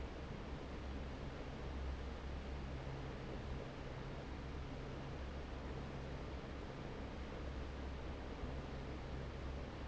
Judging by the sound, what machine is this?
fan